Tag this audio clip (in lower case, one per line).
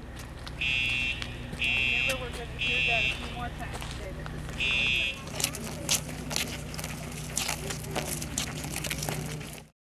speech
fire alarm